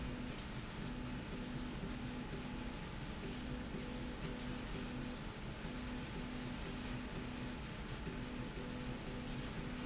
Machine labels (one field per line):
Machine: slide rail